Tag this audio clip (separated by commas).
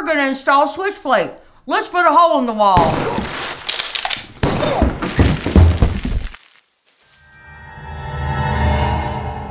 Music, Speech, gunfire